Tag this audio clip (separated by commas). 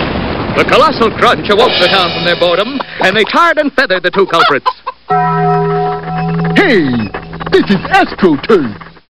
Speech, Music